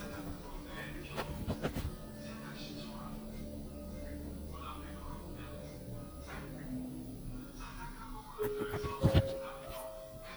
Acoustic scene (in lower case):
elevator